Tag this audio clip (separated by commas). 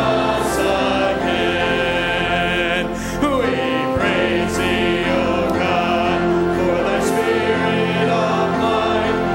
Choir, Male singing, Music